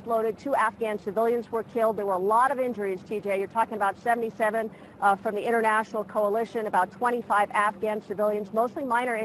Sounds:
Speech

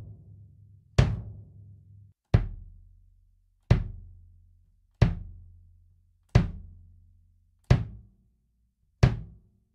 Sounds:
playing bass drum

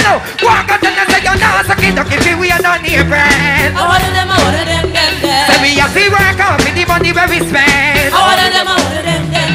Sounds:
Music

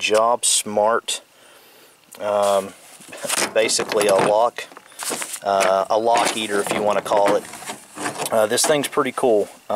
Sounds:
Speech

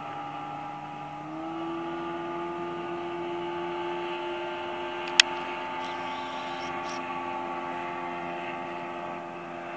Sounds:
Vehicle, Motorboat

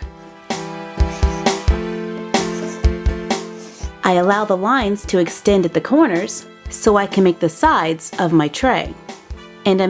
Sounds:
Speech, Music

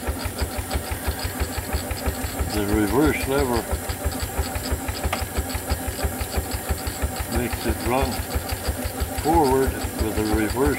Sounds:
Speech, Engine

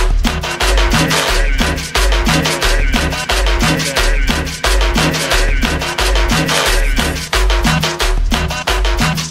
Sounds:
Music, Electronica

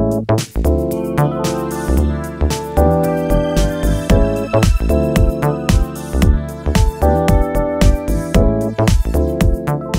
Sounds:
Music

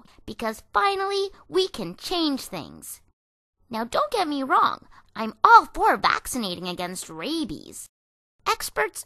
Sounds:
Speech

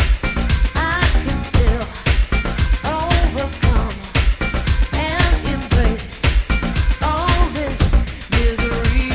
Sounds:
Music

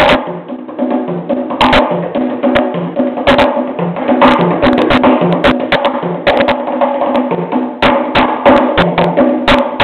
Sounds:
Music, Wood block

